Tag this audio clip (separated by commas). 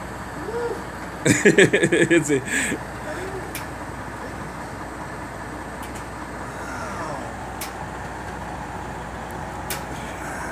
Speech